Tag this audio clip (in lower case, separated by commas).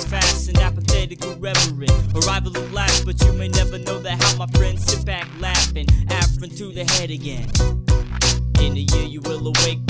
music